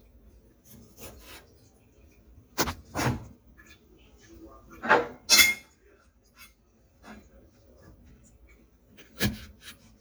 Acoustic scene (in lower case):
kitchen